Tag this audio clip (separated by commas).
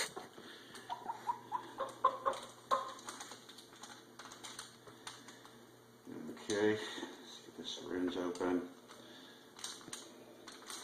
Speech